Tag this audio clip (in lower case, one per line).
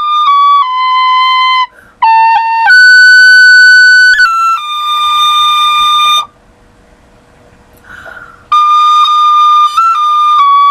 music